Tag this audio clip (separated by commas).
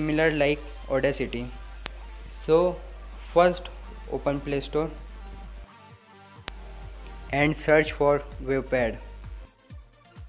Speech, Music